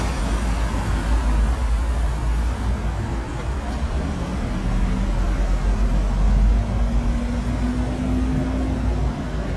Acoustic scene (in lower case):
street